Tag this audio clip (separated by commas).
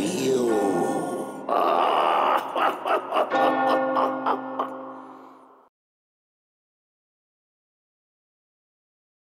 Speech